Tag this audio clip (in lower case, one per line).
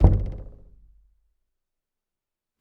door
domestic sounds
knock